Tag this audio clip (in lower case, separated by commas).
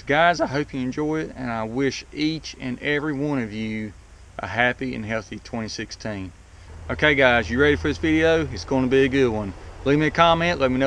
speech, outside, rural or natural